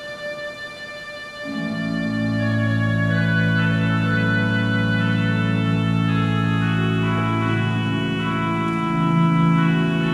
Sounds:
Hammond organ, Organ

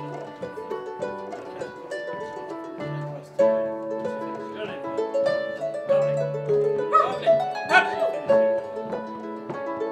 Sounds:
playing harp

